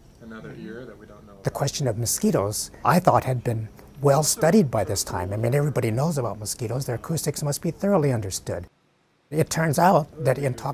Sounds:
speech

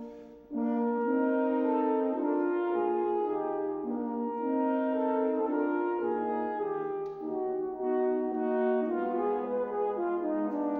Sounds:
orchestra
brass instrument
classical music
musical instrument
music

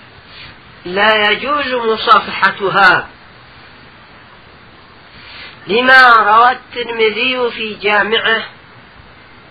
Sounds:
speech

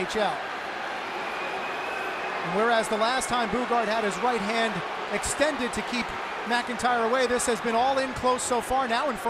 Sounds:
speech

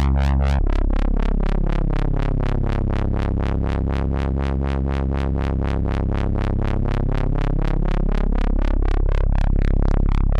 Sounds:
sampler

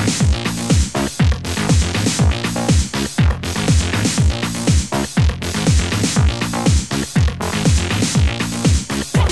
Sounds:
music

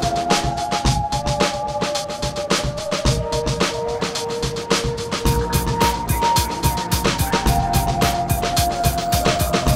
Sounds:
music
speech

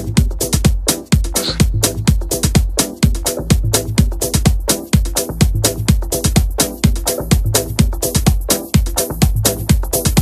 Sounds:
music

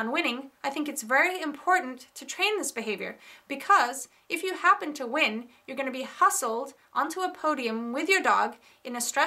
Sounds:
speech

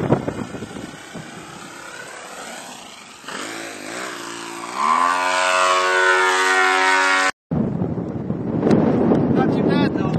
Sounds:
speech
wind noise (microphone)

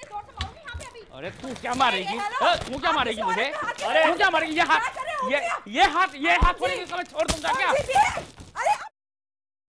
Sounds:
speech
television

